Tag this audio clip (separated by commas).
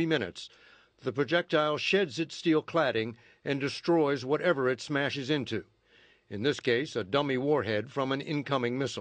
Speech